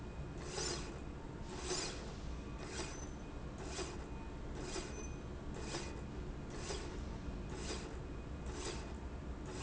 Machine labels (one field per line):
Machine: slide rail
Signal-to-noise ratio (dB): 0 dB